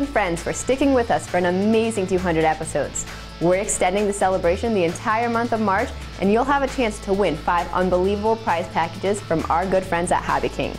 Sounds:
music
speech

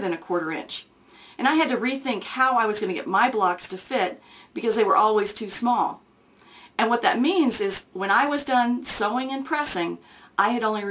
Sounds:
speech

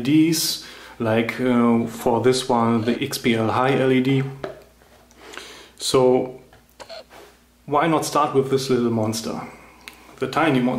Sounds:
speech

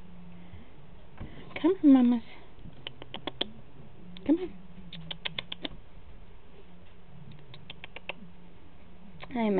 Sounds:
mouse pattering
patter

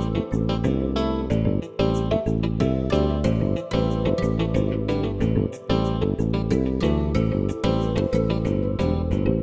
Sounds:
music

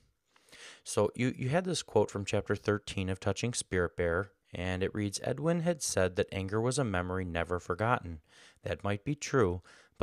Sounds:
speech

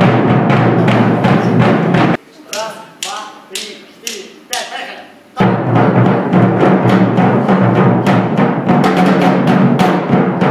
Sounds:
playing timpani

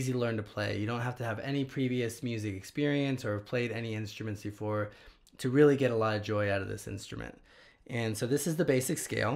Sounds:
speech

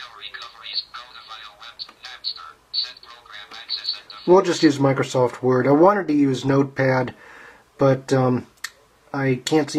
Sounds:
speech

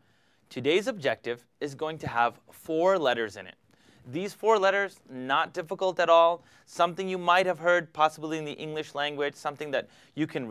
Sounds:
speech

